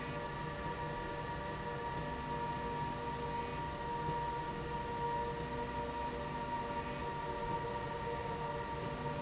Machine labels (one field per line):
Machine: slide rail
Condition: normal